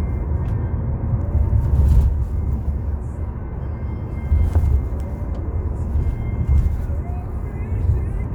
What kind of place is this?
car